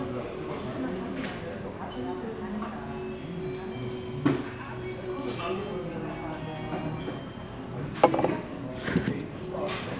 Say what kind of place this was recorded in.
crowded indoor space